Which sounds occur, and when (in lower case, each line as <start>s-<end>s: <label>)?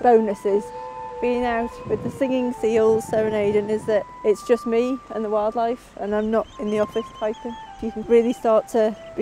0.0s-9.2s: music
0.0s-0.6s: female speech
1.1s-4.0s: female speech
4.2s-5.7s: female speech
5.8s-7.5s: female speech
7.8s-9.0s: female speech
9.1s-9.2s: female speech